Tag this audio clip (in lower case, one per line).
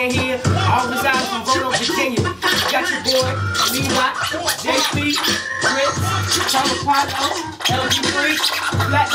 hip hop music
scratching (performance technique)
inside a small room
music
singing
rapping